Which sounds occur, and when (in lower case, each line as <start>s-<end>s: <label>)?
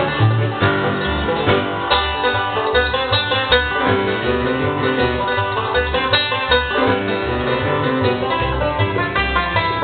0.0s-9.8s: music